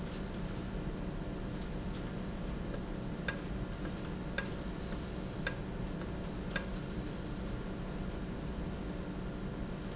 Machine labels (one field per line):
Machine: valve